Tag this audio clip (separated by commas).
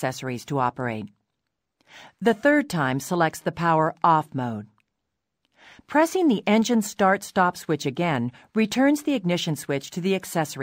Speech